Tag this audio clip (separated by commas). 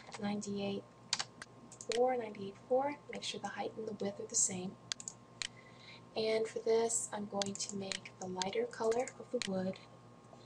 Speech